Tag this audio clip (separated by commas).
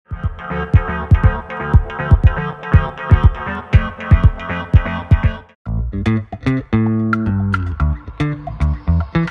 Music, outside, urban or man-made, Bass guitar